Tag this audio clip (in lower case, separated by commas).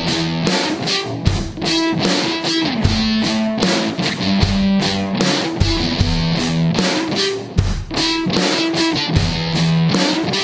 progressive rock, music